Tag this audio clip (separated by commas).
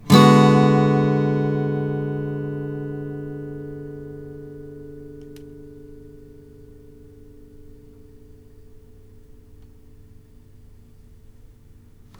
Plucked string instrument, Musical instrument, Music, Guitar